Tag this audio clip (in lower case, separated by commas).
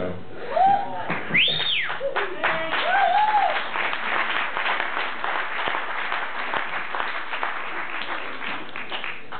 speech